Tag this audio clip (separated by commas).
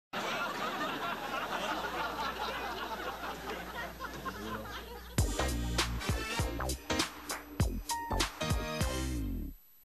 Music